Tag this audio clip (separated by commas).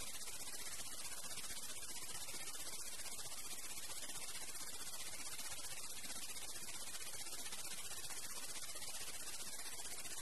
Vibration